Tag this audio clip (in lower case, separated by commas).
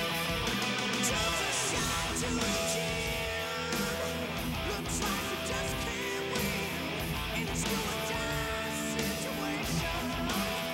music